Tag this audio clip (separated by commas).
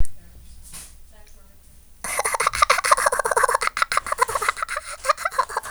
Laughter, Human voice